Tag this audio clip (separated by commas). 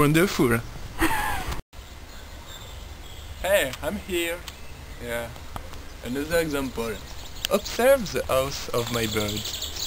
bird call, Speech